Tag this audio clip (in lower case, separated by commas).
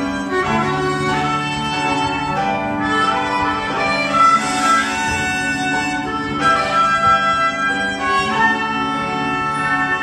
fiddle, bowed string instrument, orchestra, music